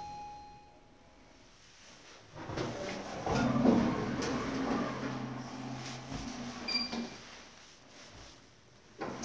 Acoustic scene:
elevator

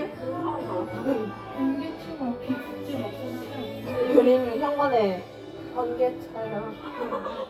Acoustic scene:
crowded indoor space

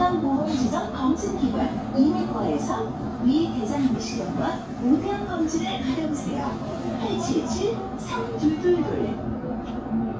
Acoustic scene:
bus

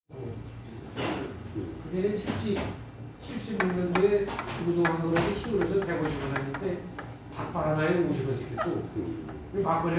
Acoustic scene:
restaurant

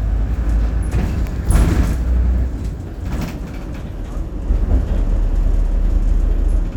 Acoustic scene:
bus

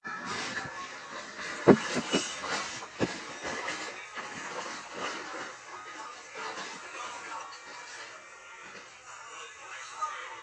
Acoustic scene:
restaurant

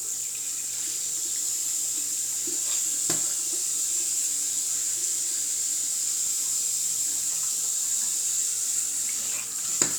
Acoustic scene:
restroom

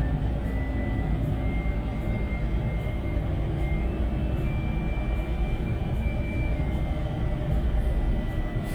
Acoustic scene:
bus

